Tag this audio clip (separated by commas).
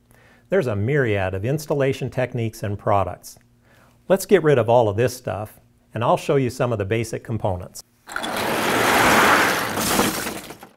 Speech